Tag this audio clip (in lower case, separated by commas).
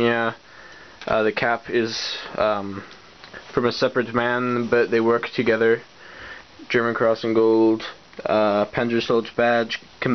inside a small room, speech